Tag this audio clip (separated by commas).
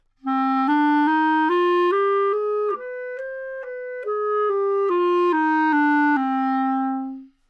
Wind instrument, Musical instrument, Music